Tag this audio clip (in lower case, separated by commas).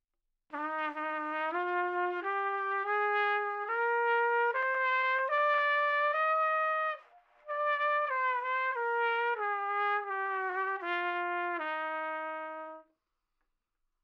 music, trumpet, brass instrument, musical instrument